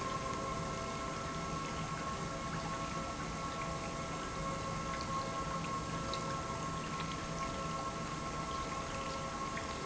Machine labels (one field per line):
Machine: pump